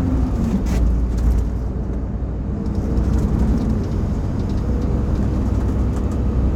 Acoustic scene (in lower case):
bus